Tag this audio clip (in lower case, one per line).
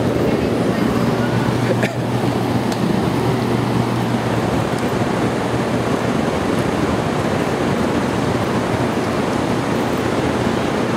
waterfall
speech
surf